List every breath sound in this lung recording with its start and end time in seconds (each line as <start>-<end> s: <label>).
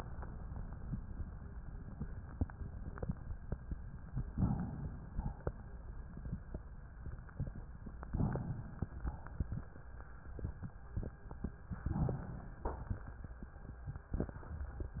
4.33-5.11 s: inhalation
5.11-5.54 s: exhalation
8.14-8.84 s: inhalation
8.84-9.45 s: exhalation
11.88-12.66 s: inhalation
12.66-13.28 s: exhalation